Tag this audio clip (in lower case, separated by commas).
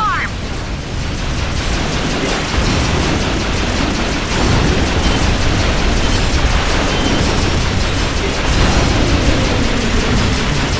speech